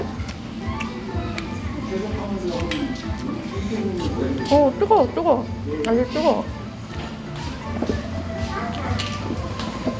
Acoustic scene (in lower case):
restaurant